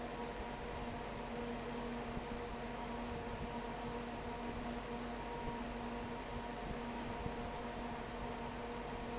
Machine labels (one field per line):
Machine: fan